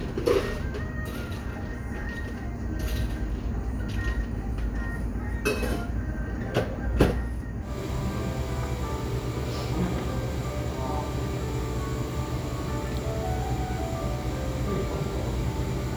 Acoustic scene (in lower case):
cafe